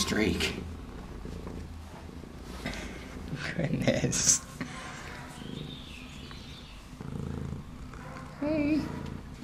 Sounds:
pets, Animal, Cat, Speech, Purr

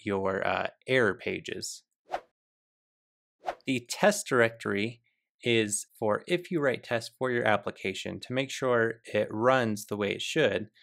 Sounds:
Speech

